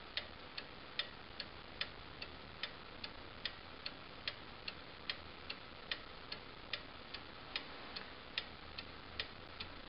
A rhythmic ticking sound